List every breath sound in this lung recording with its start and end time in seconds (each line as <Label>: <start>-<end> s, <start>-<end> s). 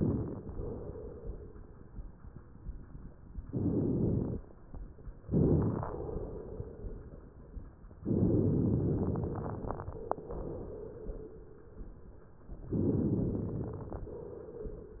Inhalation: 3.47-4.38 s, 5.28-5.81 s, 8.04-9.91 s, 12.73-14.16 s
Exhalation: 0.51-1.77 s, 5.84-7.10 s
Crackles: 3.47-4.38 s, 5.28-5.81 s, 8.04-9.91 s, 12.73-14.16 s